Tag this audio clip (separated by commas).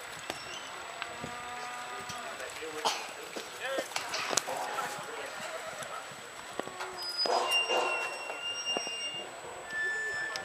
Speech, Animal